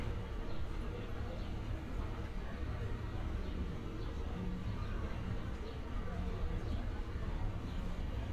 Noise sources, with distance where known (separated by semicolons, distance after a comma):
person or small group talking